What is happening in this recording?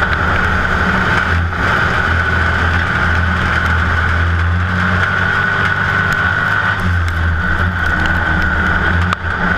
Vechicle sound followed by a wind sound